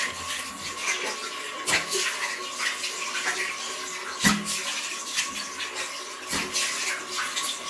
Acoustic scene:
restroom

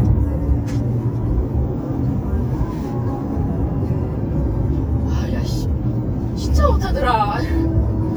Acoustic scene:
car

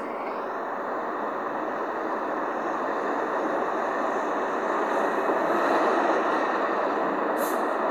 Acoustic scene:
street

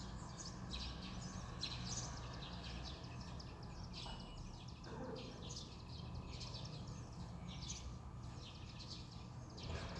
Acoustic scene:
residential area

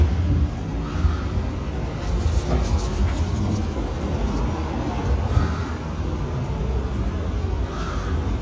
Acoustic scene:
residential area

